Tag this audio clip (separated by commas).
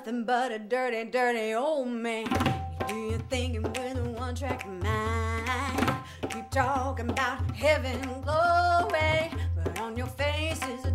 Music